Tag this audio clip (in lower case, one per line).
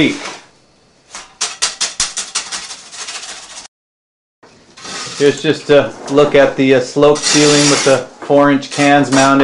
inside a small room
speech